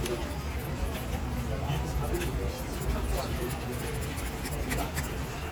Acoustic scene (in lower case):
crowded indoor space